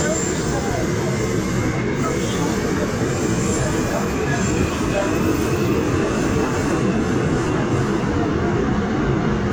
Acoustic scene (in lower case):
subway train